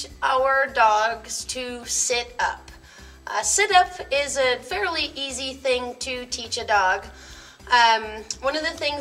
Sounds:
speech, music

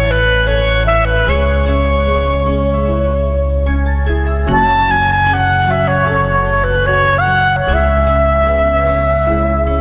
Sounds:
brass instrument

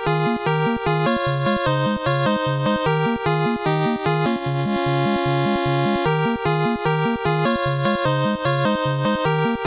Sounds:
music, soundtrack music

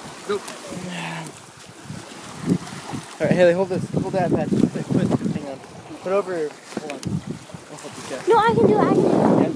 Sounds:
speech

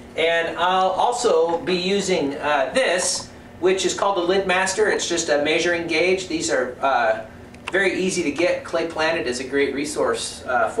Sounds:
speech, inside a small room

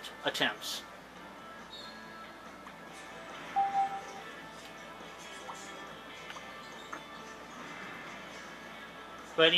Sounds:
speech, music

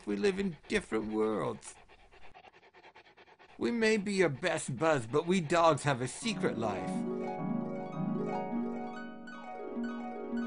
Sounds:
speech, music

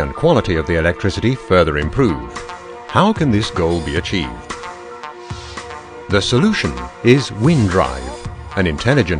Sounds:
speech, music

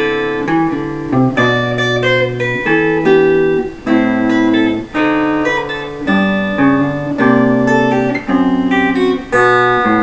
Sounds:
lullaby, music

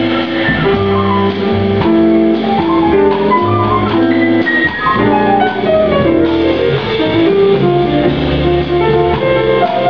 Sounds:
music, inside a large room or hall, musical instrument

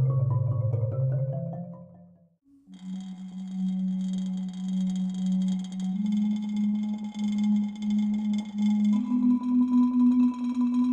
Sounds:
xylophone, percussion, music, musical instrument, playing marimba

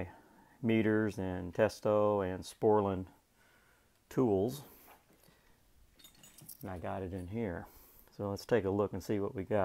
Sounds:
speech

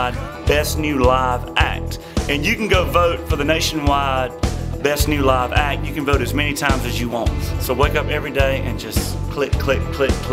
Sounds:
music, speech

